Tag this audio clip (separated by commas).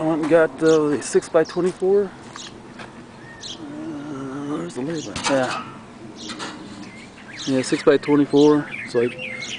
Speech, Wind